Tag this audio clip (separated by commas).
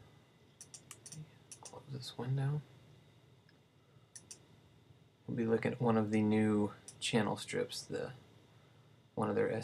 Speech